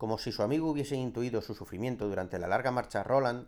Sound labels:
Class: speech